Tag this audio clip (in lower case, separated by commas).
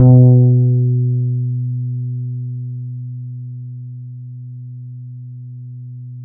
plucked string instrument, musical instrument, music, guitar, bass guitar